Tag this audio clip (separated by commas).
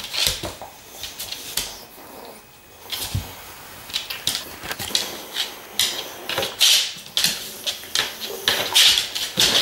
pets